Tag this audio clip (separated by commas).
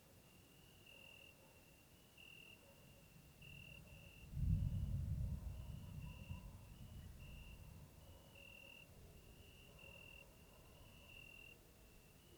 Thunder, Thunderstorm